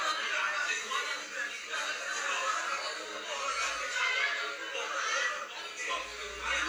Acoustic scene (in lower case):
crowded indoor space